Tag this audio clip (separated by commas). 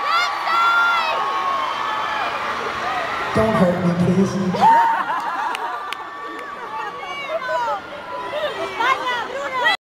Speech